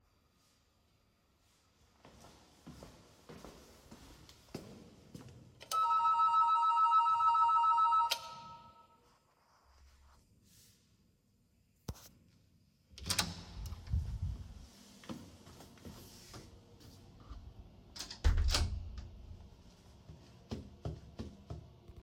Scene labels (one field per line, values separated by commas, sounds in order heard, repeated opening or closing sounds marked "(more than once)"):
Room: hallway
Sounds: footsteps, bell ringing, door (more than once)